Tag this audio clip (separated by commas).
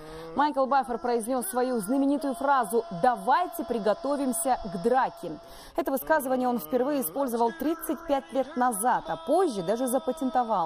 people battle cry